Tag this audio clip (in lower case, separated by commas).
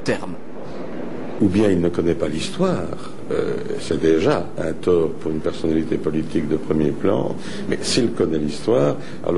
speech